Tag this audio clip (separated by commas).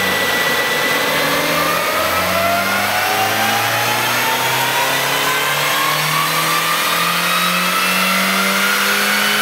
Car, Medium engine (mid frequency), Vehicle, Motor vehicle (road)